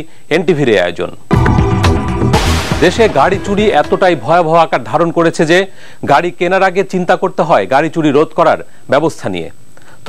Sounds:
music, speech

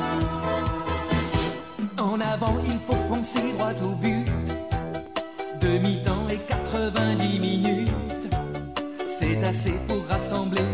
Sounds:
music

